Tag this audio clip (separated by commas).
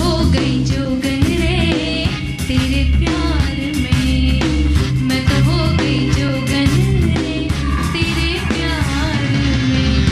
Music